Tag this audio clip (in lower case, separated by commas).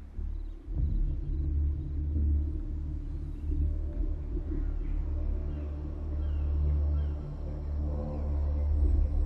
music, outside, urban or man-made, rumble